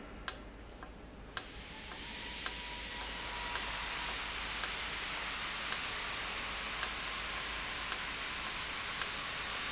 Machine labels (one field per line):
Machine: valve